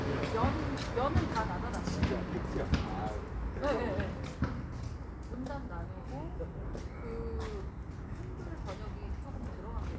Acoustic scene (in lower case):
residential area